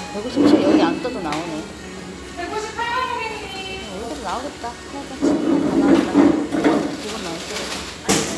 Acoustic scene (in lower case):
restaurant